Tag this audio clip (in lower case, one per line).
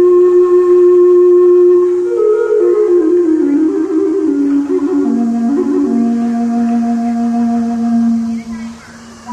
music
flute
speech